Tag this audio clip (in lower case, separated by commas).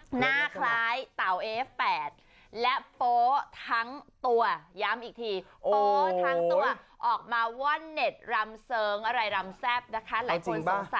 speech